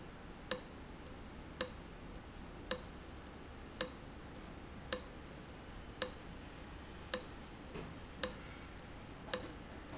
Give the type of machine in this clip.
valve